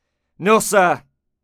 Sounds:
Speech, man speaking, Human voice

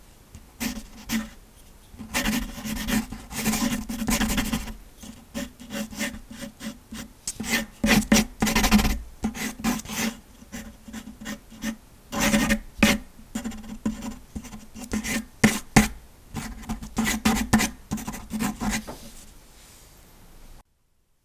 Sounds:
Writing, home sounds

